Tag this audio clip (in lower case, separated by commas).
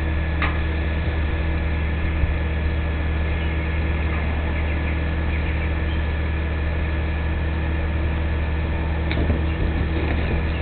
vehicle